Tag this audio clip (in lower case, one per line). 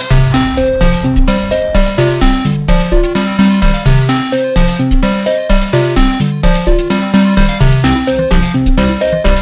music